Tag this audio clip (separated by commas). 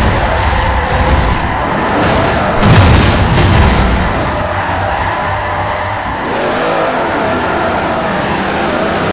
Vehicle, Skidding